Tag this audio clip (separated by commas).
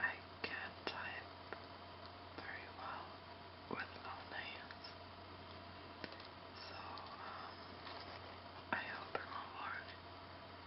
Speech